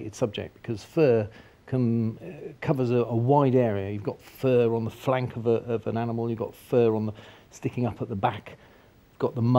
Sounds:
speech

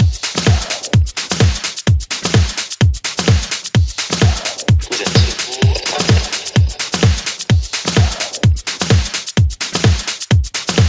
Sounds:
house music
dance music

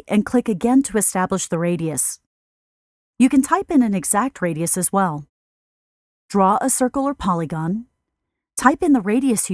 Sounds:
speech

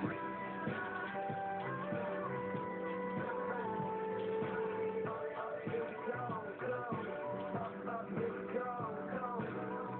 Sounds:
music

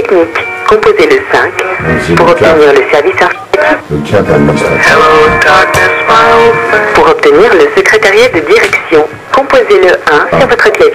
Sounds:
music
speech

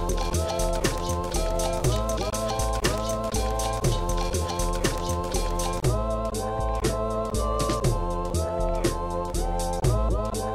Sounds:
music

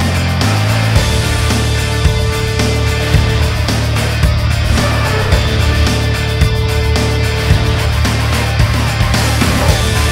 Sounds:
music

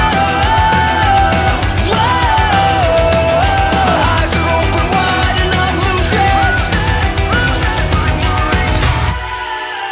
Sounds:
pop music
funk
music

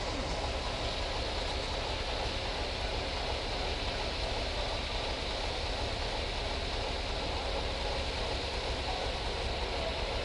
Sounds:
vehicle
speech

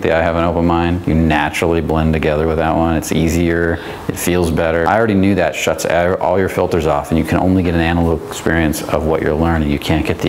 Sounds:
speech

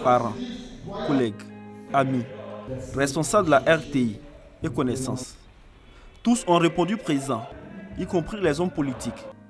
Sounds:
music
speech

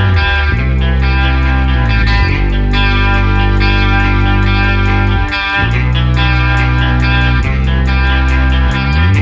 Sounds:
music

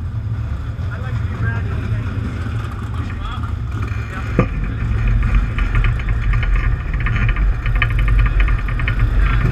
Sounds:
speech
vehicle

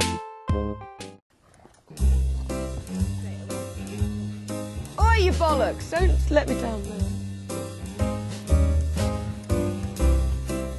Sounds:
speech
music

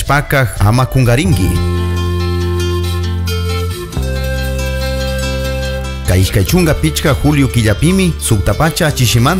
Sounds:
speech
music

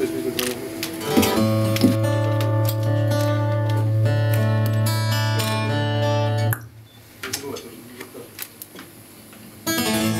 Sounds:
speech
music

